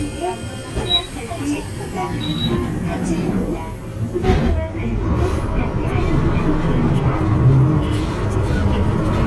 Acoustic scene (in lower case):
bus